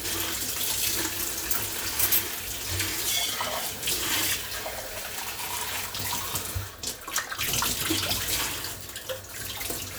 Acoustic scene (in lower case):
kitchen